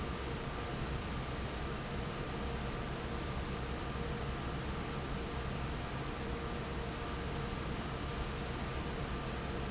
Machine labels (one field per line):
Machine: fan